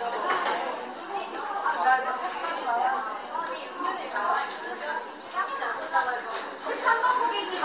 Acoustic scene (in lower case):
cafe